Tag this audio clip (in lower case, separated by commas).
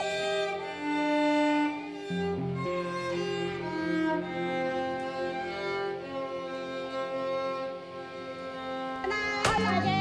bowed string instrument, speech, violin, music